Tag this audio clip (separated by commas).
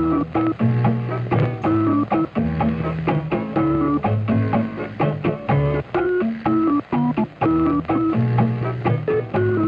Music